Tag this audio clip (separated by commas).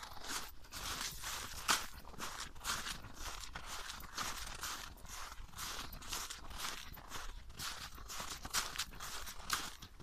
footsteps on snow